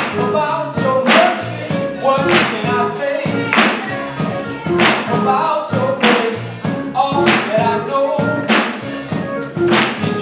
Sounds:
male singing, music

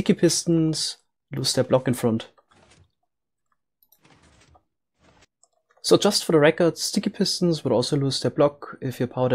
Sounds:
speech

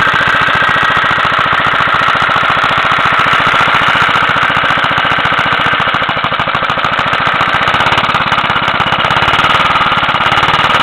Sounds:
medium engine (mid frequency), idling, engine

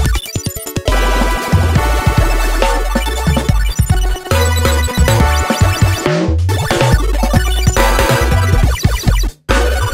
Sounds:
music

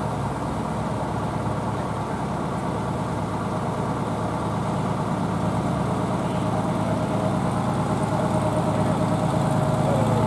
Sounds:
vehicle, speech, truck

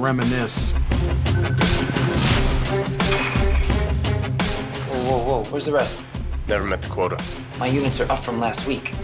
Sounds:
speech, music

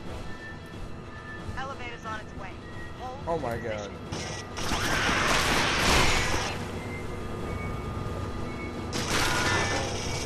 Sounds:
speech, inside a large room or hall, music

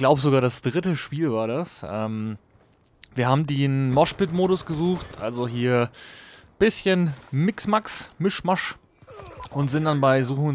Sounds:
speech

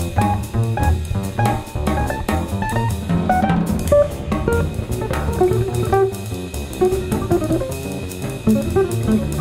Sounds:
drum, guitar, musical instrument, drum kit, music, jazz

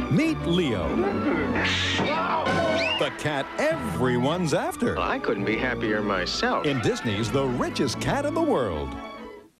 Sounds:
speech, music

